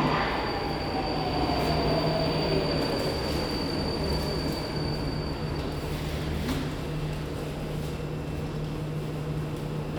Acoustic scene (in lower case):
subway station